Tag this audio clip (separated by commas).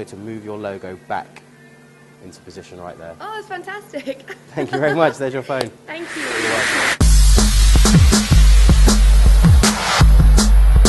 Speech, Music